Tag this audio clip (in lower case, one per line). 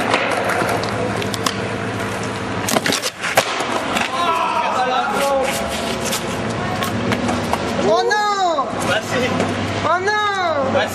speech